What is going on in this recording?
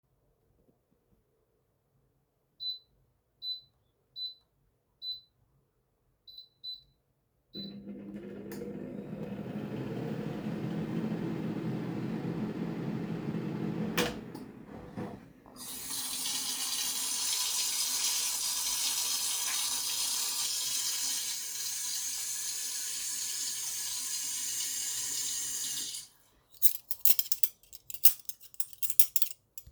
I programmed the microwave and turned it on, after that i turned on the tap to wash my hands and picked up some cutlery.